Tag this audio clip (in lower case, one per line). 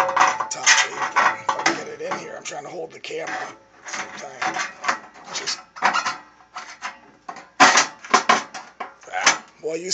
speech